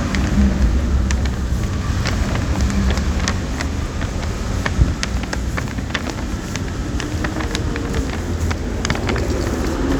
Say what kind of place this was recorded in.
street